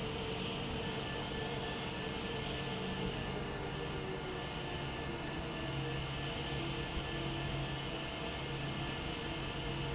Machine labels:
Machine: fan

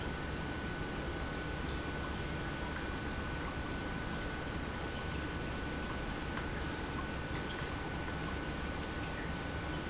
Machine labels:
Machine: pump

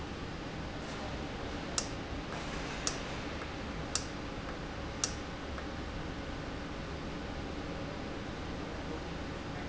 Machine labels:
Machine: valve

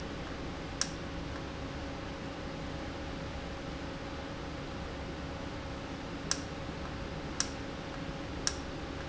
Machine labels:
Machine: valve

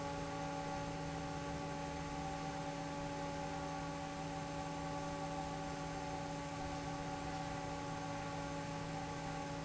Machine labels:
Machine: fan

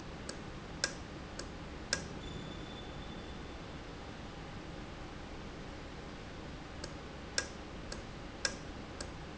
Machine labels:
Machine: valve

